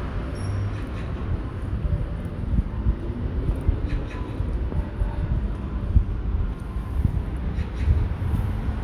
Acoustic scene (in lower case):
street